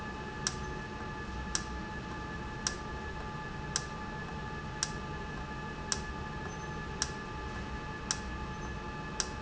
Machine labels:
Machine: valve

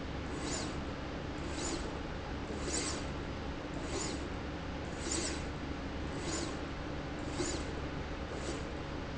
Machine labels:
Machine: slide rail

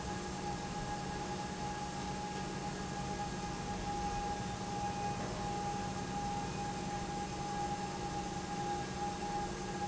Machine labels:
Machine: pump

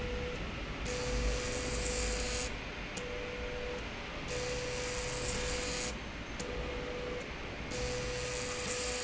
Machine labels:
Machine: slide rail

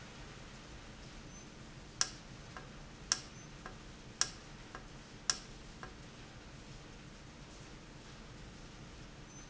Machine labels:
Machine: valve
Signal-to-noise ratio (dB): 6 dB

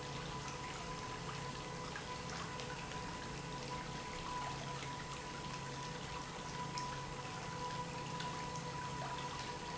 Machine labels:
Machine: pump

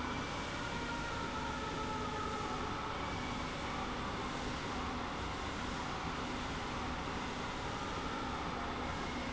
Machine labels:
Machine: slide rail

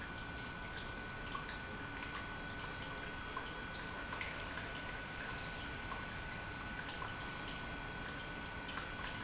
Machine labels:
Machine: pump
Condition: normal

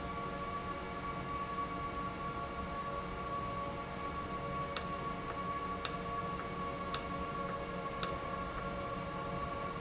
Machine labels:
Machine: valve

